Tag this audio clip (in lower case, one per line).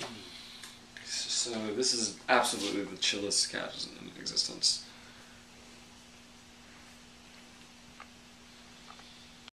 speech